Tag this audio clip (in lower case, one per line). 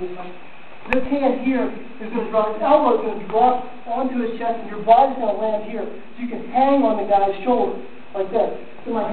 speech